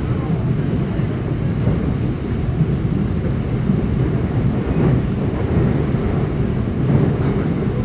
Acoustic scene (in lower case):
subway train